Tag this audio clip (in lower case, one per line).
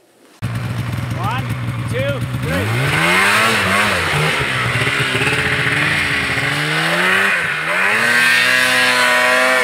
driving snowmobile